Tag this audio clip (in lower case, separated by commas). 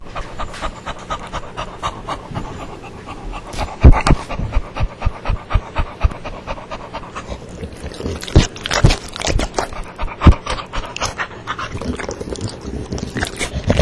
animal, domestic animals, dog